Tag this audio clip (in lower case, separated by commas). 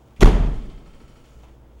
slam, door, domestic sounds